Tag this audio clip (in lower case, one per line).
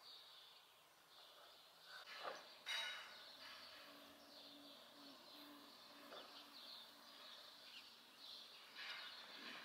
barn swallow calling